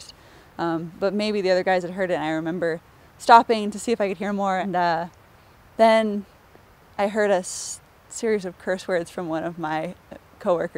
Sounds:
speech

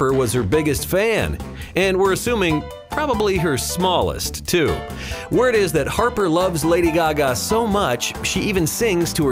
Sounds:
speech
music

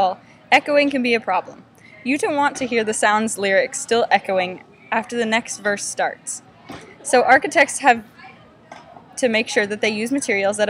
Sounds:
speech

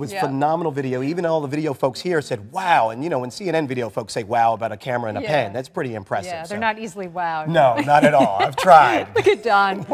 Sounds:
speech

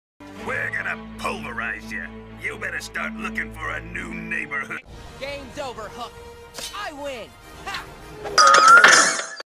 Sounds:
music
speech

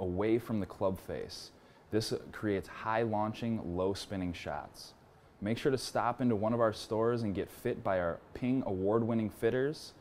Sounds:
speech

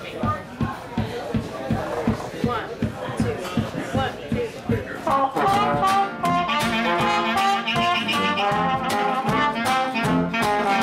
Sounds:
speech
funk
music

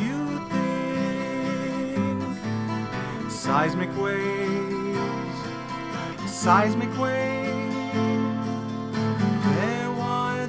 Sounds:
music

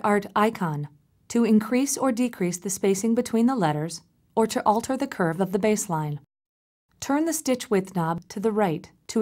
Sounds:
speech

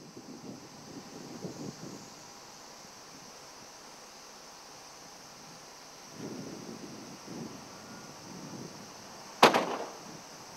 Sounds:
opening or closing car doors

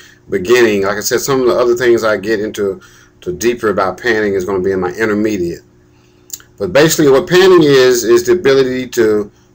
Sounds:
speech

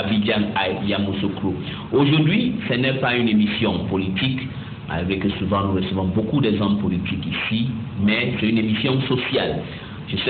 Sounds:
speech

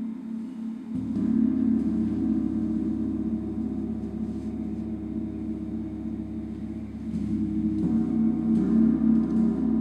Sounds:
playing gong

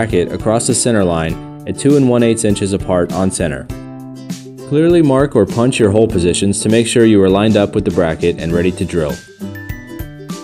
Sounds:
speech
music

